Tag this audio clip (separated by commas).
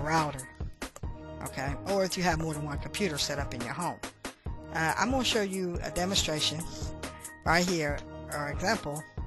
Music, Speech